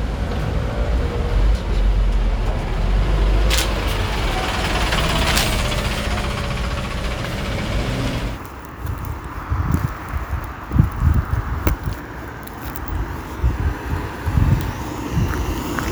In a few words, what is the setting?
street